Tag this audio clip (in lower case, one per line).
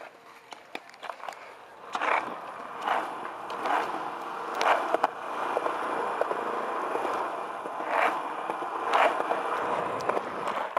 skateboard